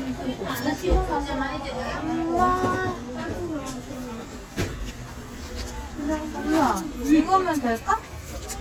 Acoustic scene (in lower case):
crowded indoor space